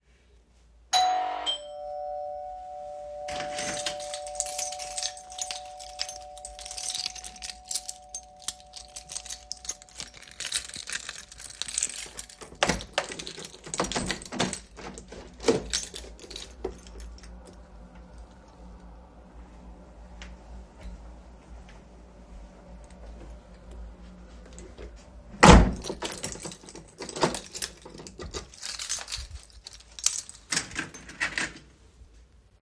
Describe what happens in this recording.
The bell rang, so I went to open the door. I picked up the keychain from where it was hanging on the wall, opened the door with it and locked the door with the key again after the person entered. Then I hung up the keychain where it was again.